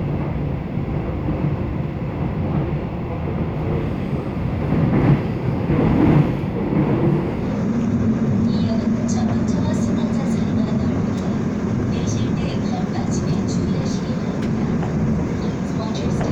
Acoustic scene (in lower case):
subway train